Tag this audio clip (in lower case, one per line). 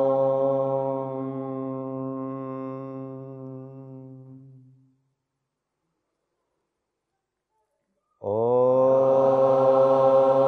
mantra